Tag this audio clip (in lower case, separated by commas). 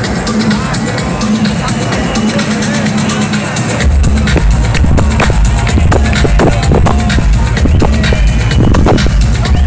crowd, music, speech